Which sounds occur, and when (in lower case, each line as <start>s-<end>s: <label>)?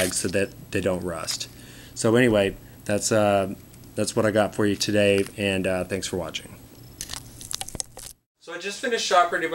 0.0s-0.4s: male speech
0.0s-8.2s: mechanisms
0.7s-1.5s: male speech
2.0s-2.5s: male speech
2.9s-3.5s: male speech
3.9s-6.5s: male speech
6.9s-8.1s: mastication
8.4s-9.5s: male speech